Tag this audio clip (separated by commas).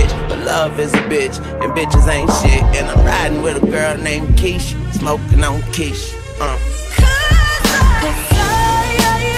Rapping, Music